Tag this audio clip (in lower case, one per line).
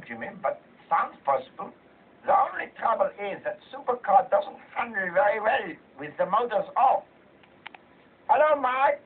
speech
television